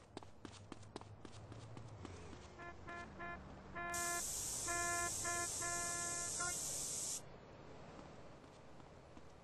Footsteps on pavement, a car horn in the distance, spraying